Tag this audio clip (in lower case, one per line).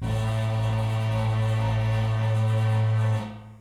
home sounds
engine